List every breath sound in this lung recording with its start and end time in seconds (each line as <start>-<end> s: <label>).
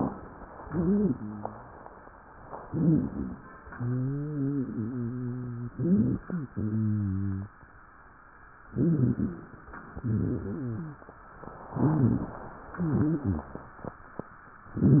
0.51-1.69 s: wheeze
2.64-3.42 s: inhalation
2.64-3.42 s: wheeze
3.68-5.69 s: wheeze
5.73-6.49 s: inhalation
5.73-6.49 s: wheeze
6.53-7.55 s: wheeze
8.71-9.49 s: inhalation
8.71-9.49 s: wheeze
9.89-11.08 s: exhalation
9.89-11.08 s: wheeze
9.89-11.08 s: wheeze
11.74-12.52 s: inhalation
11.74-12.52 s: wheeze
12.79-13.57 s: exhalation
12.79-13.57 s: wheeze